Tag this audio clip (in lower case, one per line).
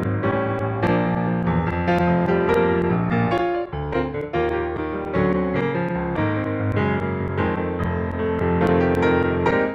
electric piano
piano